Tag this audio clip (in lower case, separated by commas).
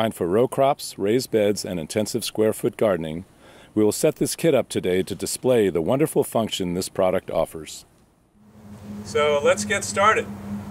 speech